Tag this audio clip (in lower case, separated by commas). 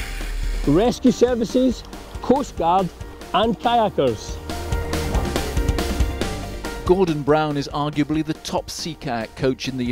music, speech